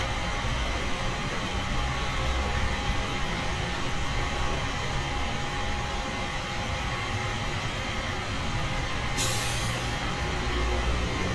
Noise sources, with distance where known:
engine of unclear size, near

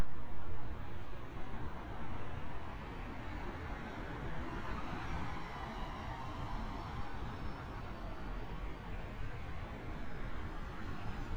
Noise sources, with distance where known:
medium-sounding engine, far

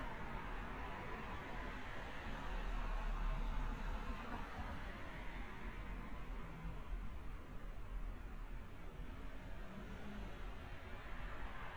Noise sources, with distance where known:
background noise

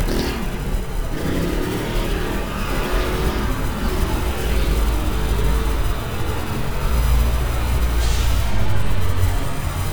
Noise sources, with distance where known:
engine of unclear size, near

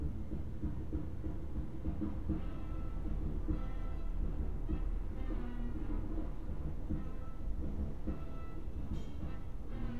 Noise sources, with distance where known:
music from an unclear source, near

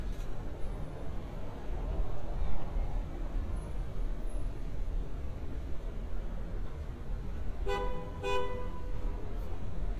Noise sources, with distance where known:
medium-sounding engine, near
car horn, near

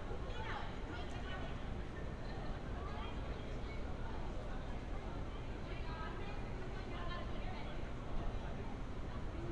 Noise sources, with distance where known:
person or small group talking, far

